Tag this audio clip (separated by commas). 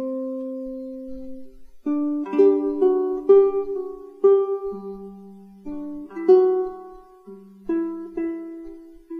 Ukulele, Music